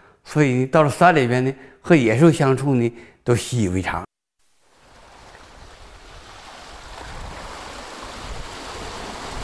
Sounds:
Speech, inside a small room

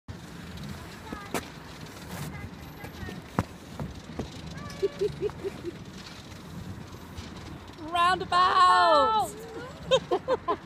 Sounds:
Speech

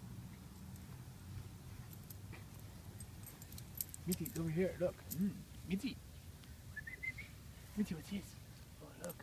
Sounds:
Speech

